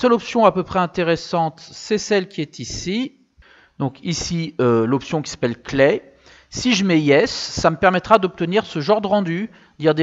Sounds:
Speech

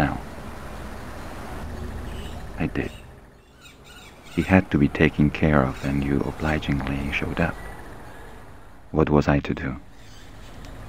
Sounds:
Bird, Speech

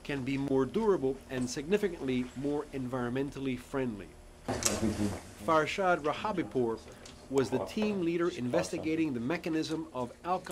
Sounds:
Speech

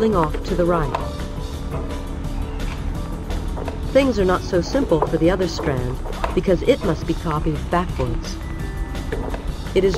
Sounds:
Music, inside a small room, Speech

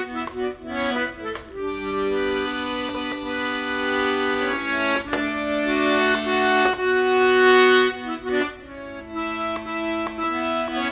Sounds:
playing accordion

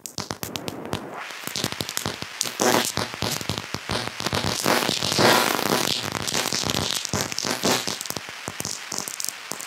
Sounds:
Crackle

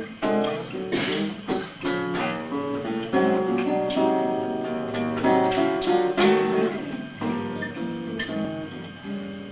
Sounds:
Musical instrument, Music, Guitar, Plucked string instrument

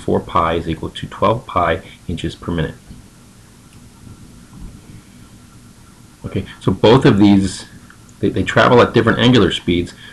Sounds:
Speech

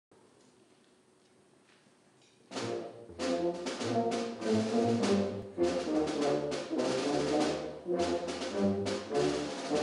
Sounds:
Music, Orchestra, inside a large room or hall

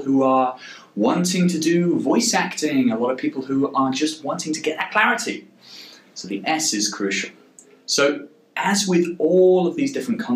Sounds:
Speech

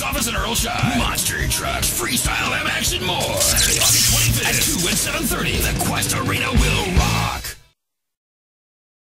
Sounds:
Speech, Music

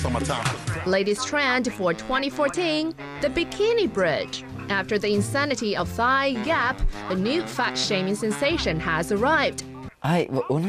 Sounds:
Speech, Music

